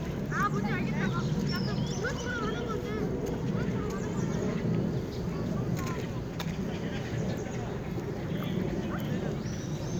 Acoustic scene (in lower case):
park